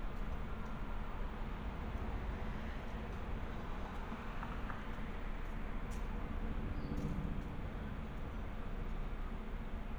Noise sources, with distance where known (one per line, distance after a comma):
background noise